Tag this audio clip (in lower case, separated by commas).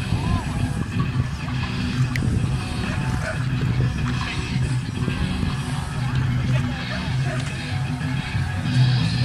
speech, dog, bow-wow, animal, pets, music